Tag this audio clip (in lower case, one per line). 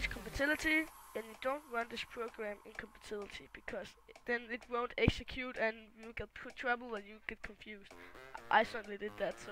speech